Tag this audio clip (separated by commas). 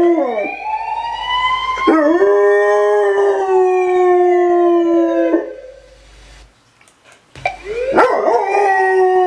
dog baying